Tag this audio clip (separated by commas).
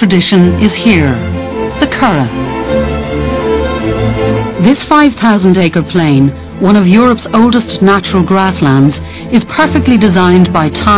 Speech, Music